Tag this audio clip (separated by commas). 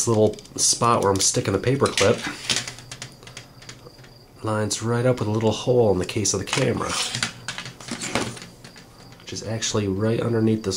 Speech